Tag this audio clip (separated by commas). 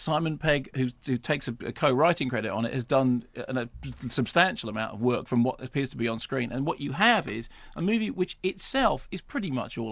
Speech